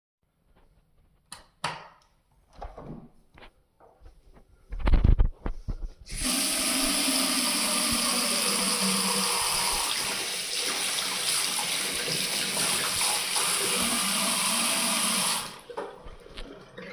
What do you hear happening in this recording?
I switched on the light, opened the door and let the water run. Washing my hands can be heard too